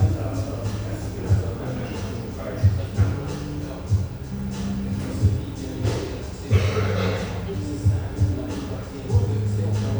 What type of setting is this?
cafe